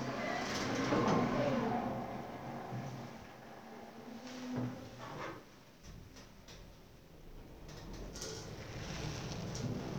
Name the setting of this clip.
elevator